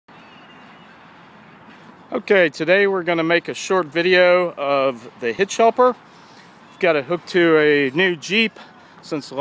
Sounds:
Vehicle

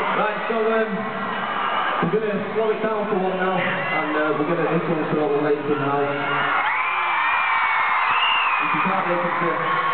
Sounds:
Speech

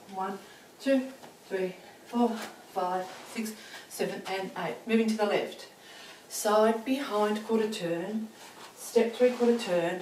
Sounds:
Walk, Speech

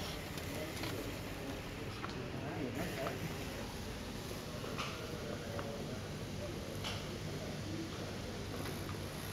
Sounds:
Speech

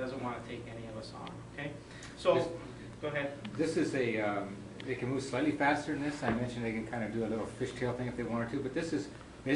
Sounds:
Speech

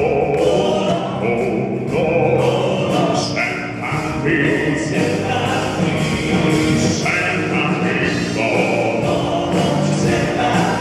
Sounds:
Music

